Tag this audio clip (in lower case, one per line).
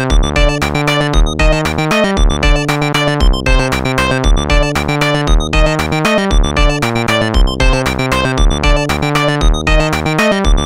electronica
music
electronic music
techno